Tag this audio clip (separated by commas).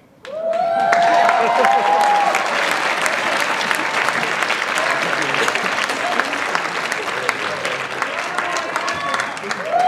Speech